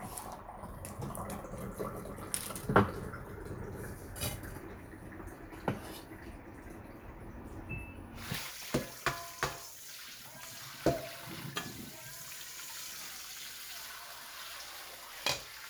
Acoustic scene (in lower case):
kitchen